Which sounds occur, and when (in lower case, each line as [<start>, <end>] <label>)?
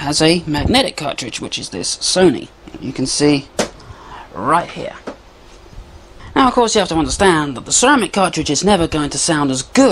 [0.00, 2.44] male speech
[0.00, 9.91] background noise
[2.66, 3.37] male speech
[3.54, 3.76] generic impact sounds
[3.76, 4.32] breathing
[4.29, 5.14] male speech
[5.00, 5.17] generic impact sounds
[5.65, 6.30] wind noise (microphone)
[6.09, 6.34] breathing
[6.30, 9.91] male speech